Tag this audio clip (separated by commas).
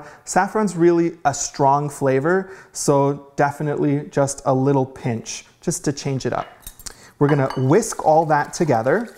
inside a small room, Speech